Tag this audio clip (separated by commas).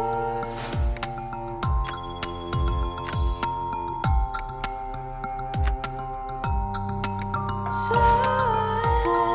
Music